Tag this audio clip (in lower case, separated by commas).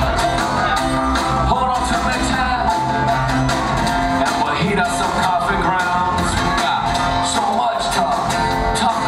music, independent music